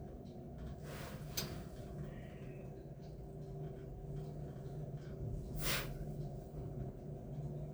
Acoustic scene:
elevator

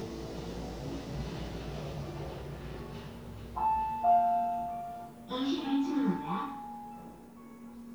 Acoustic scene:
elevator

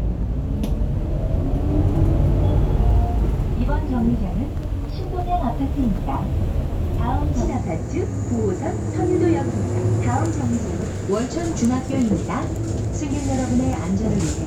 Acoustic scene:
bus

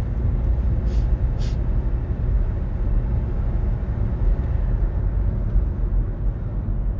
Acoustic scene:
car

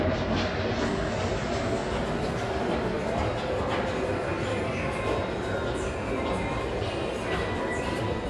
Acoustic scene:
subway station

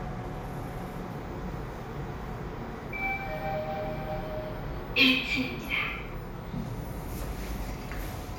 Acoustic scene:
elevator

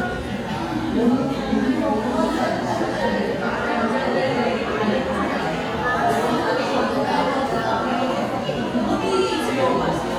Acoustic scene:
crowded indoor space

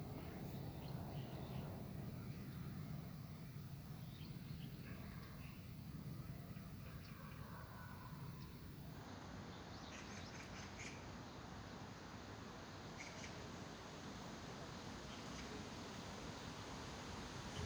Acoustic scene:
park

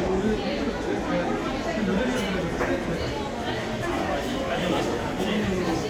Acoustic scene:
crowded indoor space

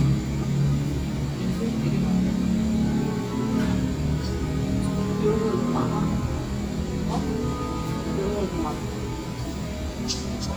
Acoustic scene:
cafe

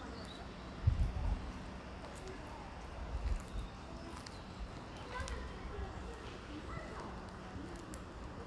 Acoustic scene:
residential area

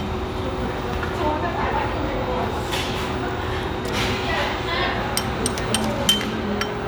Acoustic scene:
restaurant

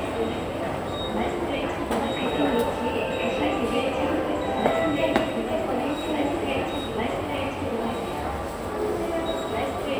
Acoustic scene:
subway station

